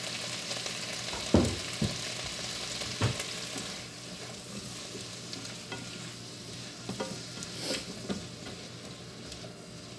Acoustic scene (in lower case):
kitchen